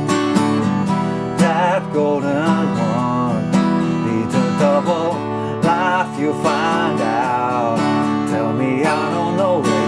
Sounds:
Musical instrument, Plucked string instrument, Guitar, Music

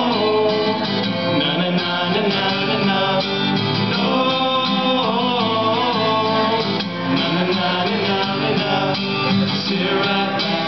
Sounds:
Music

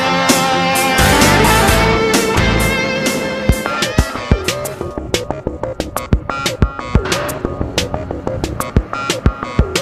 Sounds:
Music

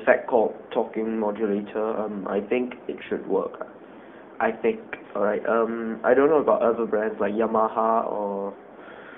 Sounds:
Speech

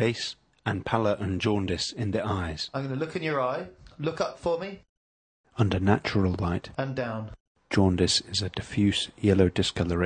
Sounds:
Speech, Conversation

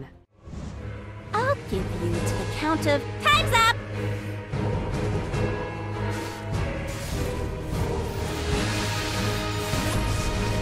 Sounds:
Theme music

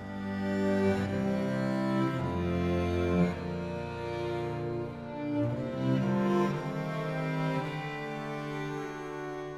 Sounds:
Music, Cello

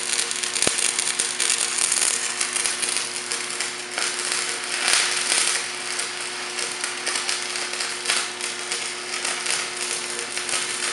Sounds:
arc welding

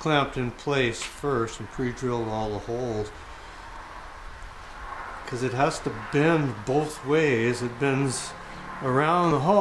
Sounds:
Speech

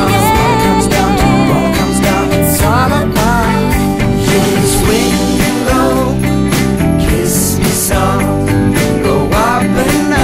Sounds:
Music, Singing

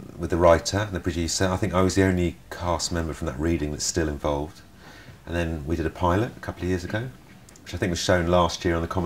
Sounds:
Speech

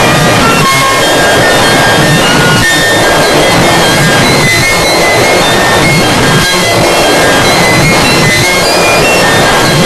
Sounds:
Rustle

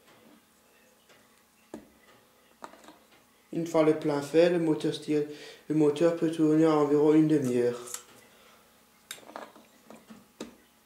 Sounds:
Speech

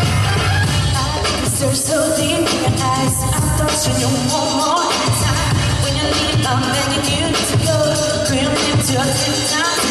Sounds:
Music, Disco

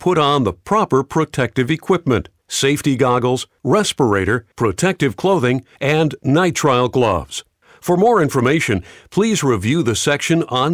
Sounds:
Speech

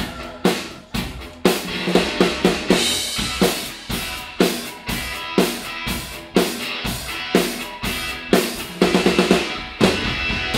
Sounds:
Music

